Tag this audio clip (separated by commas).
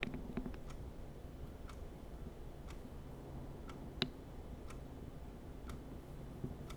Mechanisms, Clock